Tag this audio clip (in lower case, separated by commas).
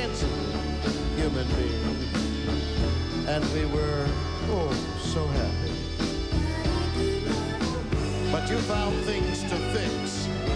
speech, music